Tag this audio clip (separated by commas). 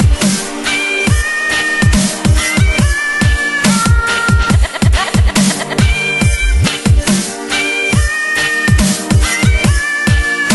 Dubstep, Music